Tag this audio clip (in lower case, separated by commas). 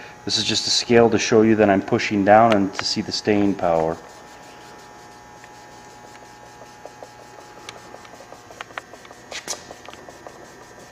speech